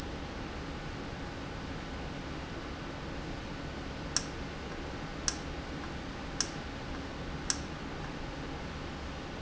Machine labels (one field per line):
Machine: valve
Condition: normal